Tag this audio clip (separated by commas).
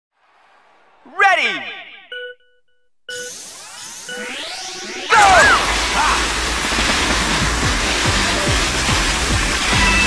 Speech, Music